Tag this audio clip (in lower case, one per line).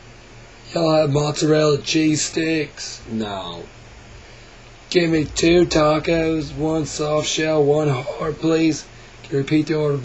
speech